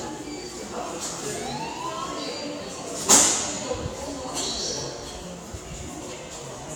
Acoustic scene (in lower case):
subway station